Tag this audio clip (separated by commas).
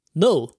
Male speech, Speech, Human voice